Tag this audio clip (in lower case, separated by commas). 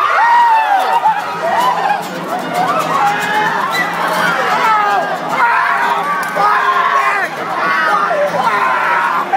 speech, music